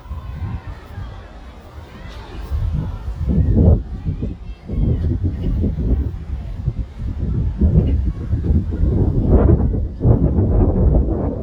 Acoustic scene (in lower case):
residential area